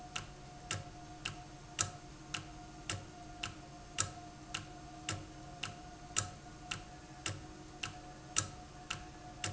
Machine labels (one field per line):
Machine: valve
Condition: normal